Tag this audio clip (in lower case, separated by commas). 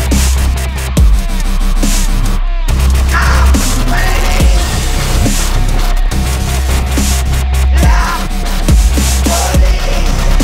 music, dubstep